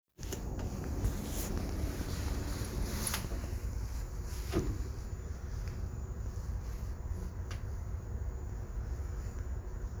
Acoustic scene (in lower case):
elevator